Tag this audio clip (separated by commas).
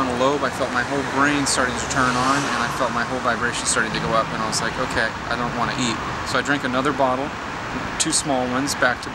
Speech, Waterfall